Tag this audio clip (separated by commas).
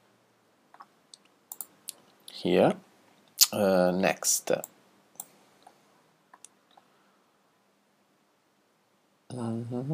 Speech